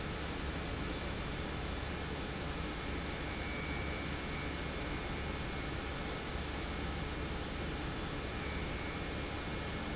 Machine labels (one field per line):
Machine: pump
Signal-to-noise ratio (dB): -6 dB